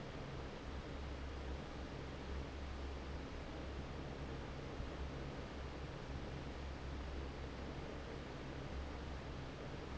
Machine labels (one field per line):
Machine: fan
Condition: normal